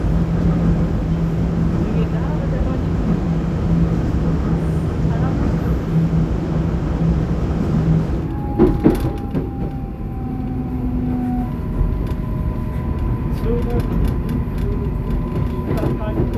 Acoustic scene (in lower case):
subway train